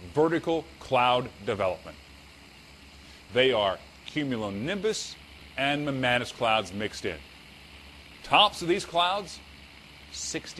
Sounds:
speech

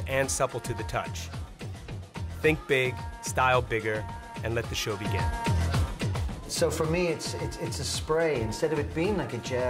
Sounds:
speech
music

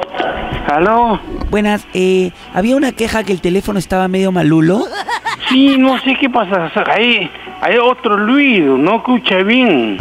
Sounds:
radio
speech
music

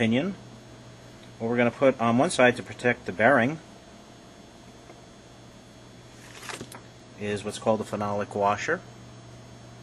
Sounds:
speech

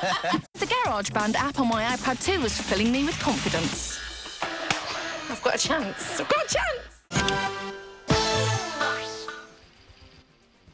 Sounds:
sampler
speech
music

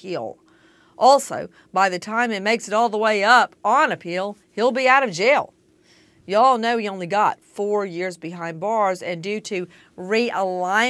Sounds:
speech

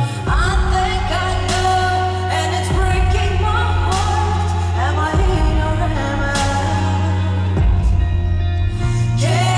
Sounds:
music

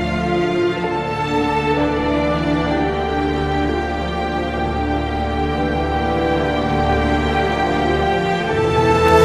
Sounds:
music

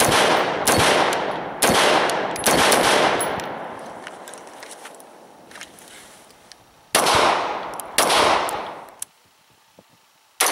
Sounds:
outside, rural or natural

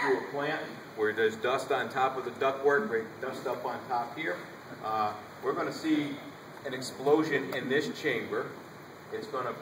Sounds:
speech

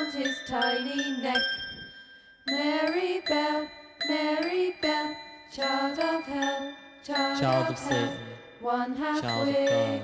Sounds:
speech
music

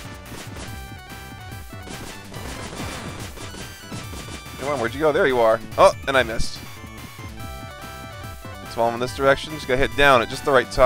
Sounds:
speech

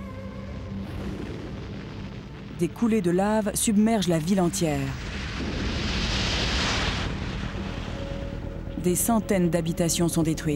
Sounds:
volcano explosion

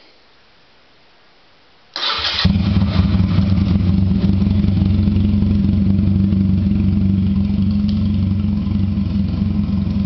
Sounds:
motorcycle
vehicle

